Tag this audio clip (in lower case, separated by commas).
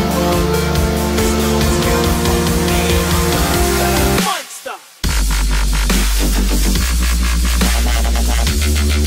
dubstep, music